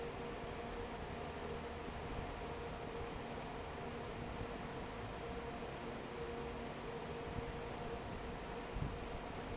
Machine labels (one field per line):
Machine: fan